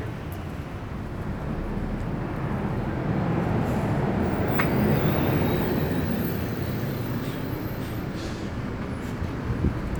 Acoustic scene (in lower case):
street